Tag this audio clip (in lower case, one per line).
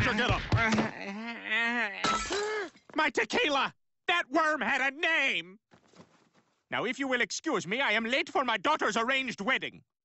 speech